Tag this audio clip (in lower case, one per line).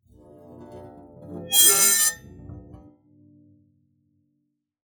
screech